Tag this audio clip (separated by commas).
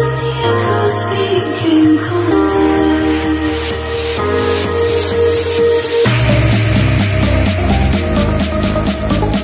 Music, Spray